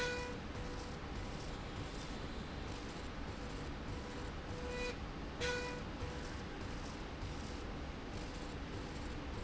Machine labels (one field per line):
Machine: slide rail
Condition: normal